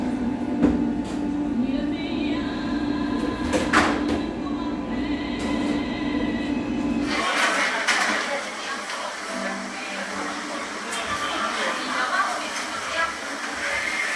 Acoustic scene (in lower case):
cafe